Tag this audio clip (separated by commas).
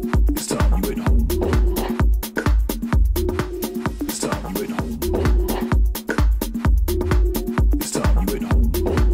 Electronic music, Music